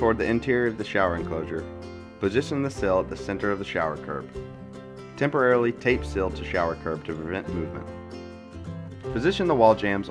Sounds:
Music, Speech

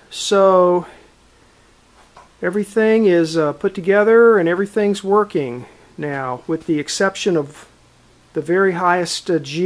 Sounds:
Speech

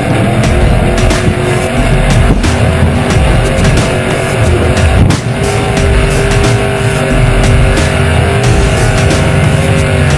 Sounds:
Music

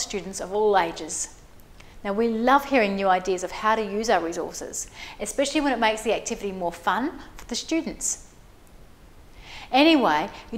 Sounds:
Speech

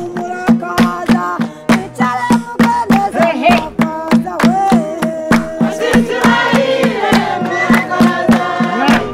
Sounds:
Speech, Music, Male singing, Female singing, Choir

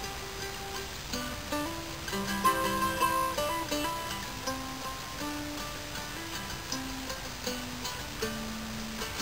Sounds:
Music

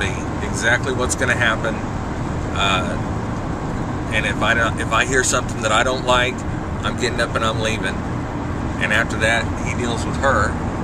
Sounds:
Vehicle, Car, Speech, Motor vehicle (road)

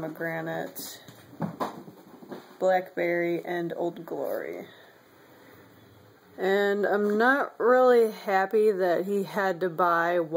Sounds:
Speech

